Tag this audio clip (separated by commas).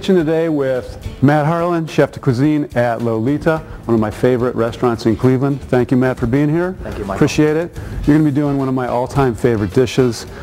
Music, Speech